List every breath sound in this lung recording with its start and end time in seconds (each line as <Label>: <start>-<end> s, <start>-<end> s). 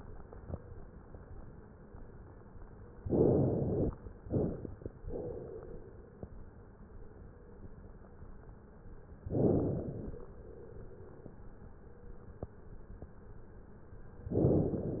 Inhalation: 3.00-3.95 s, 9.24-10.23 s, 14.33-15.00 s
Exhalation: 4.23-4.86 s